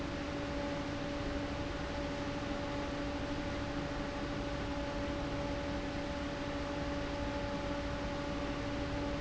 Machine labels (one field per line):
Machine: fan